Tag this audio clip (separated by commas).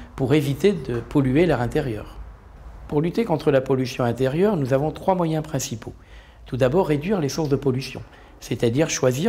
Speech